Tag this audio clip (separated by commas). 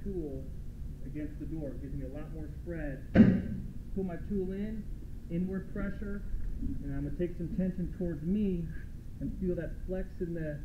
Speech